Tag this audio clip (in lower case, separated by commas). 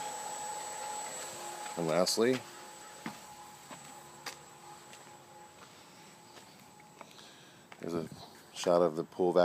speech